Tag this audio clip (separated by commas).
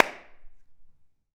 Clapping, Hands